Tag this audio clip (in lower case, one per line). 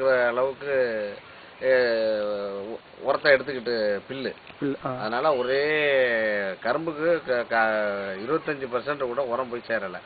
speech